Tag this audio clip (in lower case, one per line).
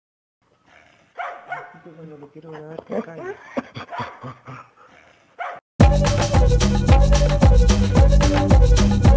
bark
dog
bow-wow
music